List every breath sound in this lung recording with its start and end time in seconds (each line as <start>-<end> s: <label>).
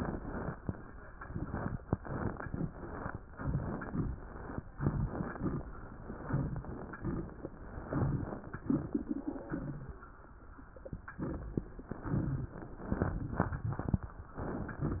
0.02-0.59 s: exhalation
1.22-1.78 s: inhalation
1.97-2.66 s: exhalation
2.69-3.27 s: inhalation
3.34-4.12 s: exhalation
4.14-4.71 s: inhalation
4.74-5.35 s: exhalation
5.41-6.02 s: inhalation
6.30-6.76 s: exhalation
6.96-7.42 s: inhalation
8.63-9.49 s: inhalation
9.51-10.11 s: exhalation
11.14-11.75 s: inhalation
12.01-12.62 s: exhalation
12.88-14.16 s: inhalation